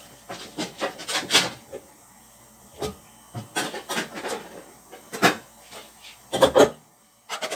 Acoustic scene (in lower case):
kitchen